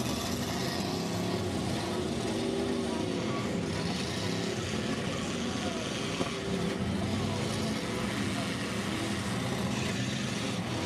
A motor vehicle is running